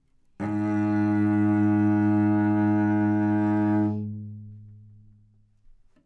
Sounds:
music
bowed string instrument
musical instrument

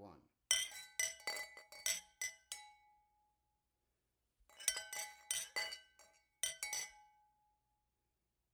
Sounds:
glass
clink

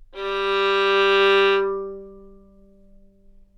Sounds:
musical instrument
music
bowed string instrument

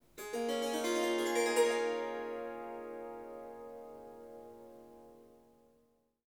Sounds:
musical instrument
music
harp

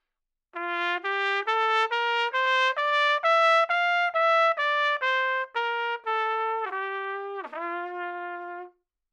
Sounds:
music
musical instrument
trumpet
brass instrument

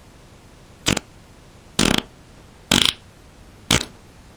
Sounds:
fart

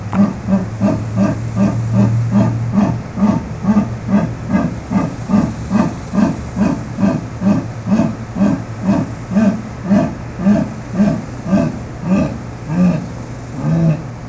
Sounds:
animal
wild animals

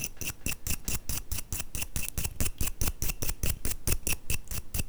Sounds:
domestic sounds

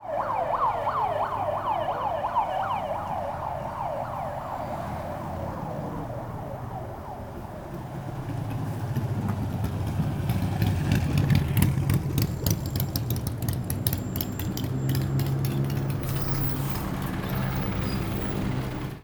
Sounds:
motorcycle
motor vehicle (road)
vehicle

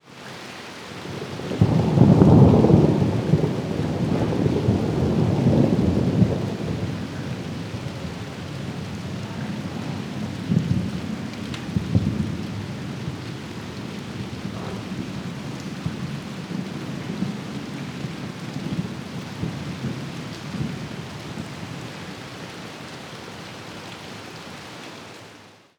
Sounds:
water
rain
thunderstorm
thunder

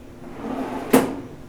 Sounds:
drawer open or close
home sounds

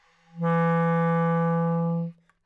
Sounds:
musical instrument
wind instrument
music

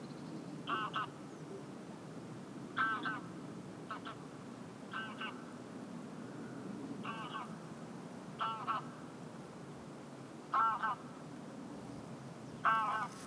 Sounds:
fowl
livestock
animal

